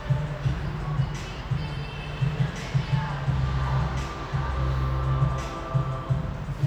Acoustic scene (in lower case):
cafe